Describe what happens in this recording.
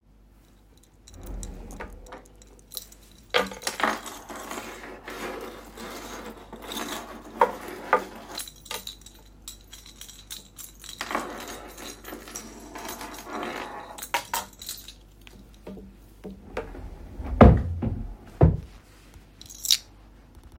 I opened a wardrobe drawer and moved a keychain while searching.